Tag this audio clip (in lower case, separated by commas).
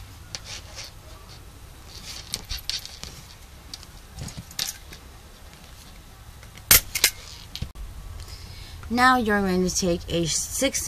speech